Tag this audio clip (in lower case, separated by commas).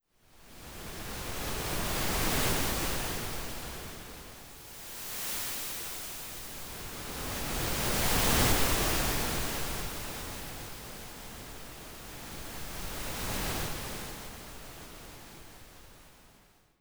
water, ocean, waves